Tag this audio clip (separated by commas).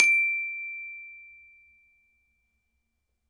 Music, Mallet percussion, Percussion, Musical instrument, Glockenspiel